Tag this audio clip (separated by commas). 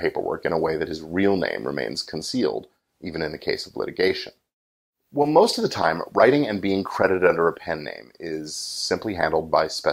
Speech